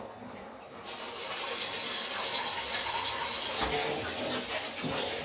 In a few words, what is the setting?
kitchen